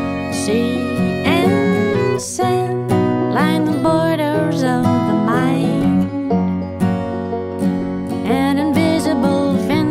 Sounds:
Music

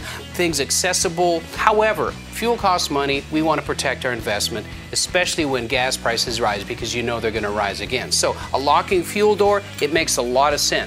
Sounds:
Speech, Music

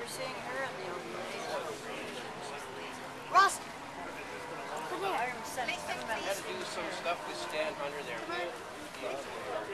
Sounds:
Speech

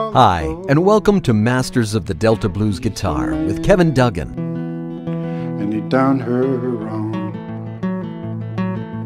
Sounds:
Music, Strum, Musical instrument, Speech, Guitar, Blues, Plucked string instrument

